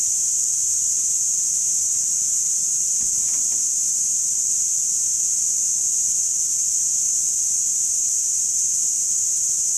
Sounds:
Snake

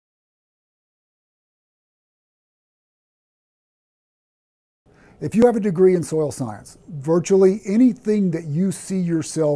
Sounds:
Speech

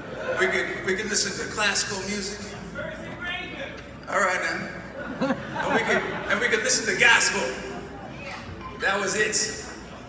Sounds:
Speech, Male speech

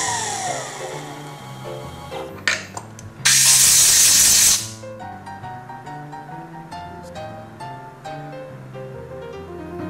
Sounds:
Music

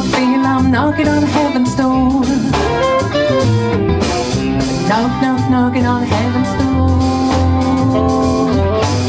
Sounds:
Music

